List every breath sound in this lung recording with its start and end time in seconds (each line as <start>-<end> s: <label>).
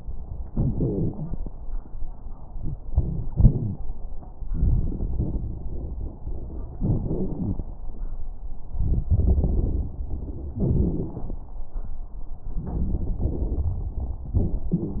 0.51-1.43 s: exhalation
0.51-1.43 s: wheeze
2.53-3.79 s: inhalation
3.29-3.79 s: wheeze
4.49-6.20 s: exhalation
4.49-6.20 s: crackles
6.79-7.62 s: inhalation
6.79-7.62 s: crackles
8.69-10.56 s: exhalation
8.69-10.56 s: crackles
10.57-11.25 s: wheeze
10.57-11.49 s: inhalation
12.54-14.27 s: exhalation
12.54-14.27 s: crackles
14.35-15.00 s: inhalation
14.35-15.00 s: crackles